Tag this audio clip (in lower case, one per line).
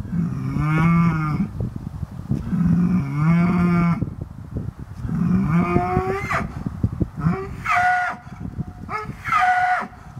bull bellowing